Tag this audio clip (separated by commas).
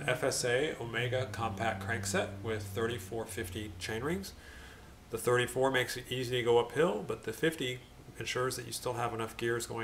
Speech